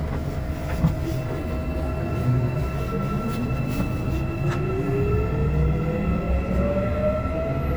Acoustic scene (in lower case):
subway train